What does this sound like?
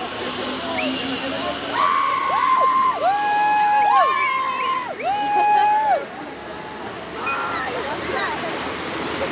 A helicopter powers up in the background while several people scream, whistle, and laugh